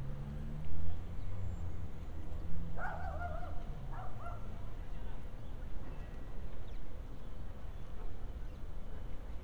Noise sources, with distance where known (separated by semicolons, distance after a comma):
dog barking or whining